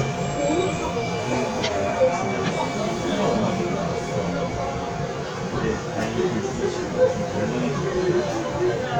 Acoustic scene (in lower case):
subway train